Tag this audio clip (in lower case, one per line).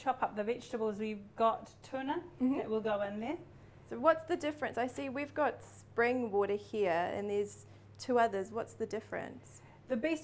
speech